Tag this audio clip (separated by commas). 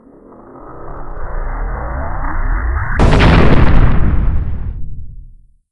Explosion